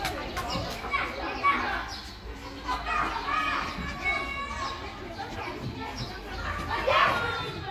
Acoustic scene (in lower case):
park